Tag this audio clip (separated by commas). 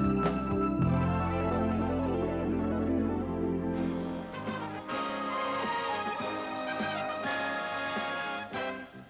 Music